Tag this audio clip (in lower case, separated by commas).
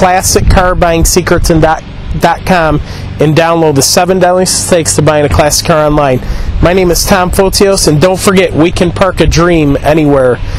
speech